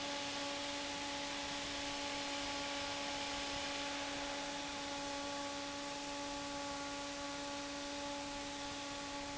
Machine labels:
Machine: fan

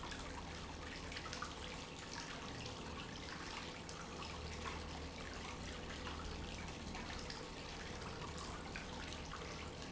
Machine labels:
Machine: pump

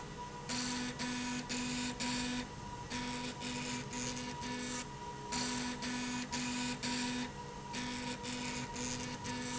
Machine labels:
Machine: slide rail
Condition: abnormal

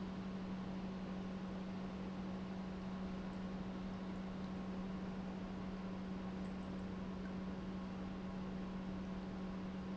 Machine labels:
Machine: pump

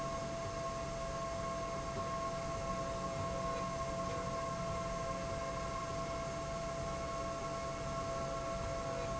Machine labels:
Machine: slide rail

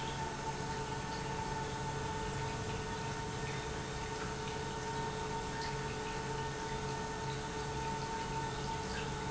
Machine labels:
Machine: pump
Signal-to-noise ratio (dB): -6 dB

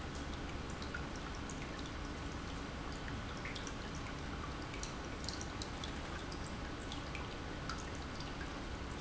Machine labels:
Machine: pump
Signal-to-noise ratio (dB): 0 dB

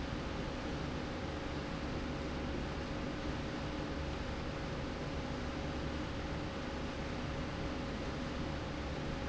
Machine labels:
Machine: slide rail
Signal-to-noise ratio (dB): -6 dB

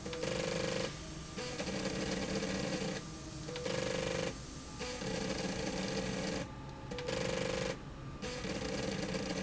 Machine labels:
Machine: slide rail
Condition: abnormal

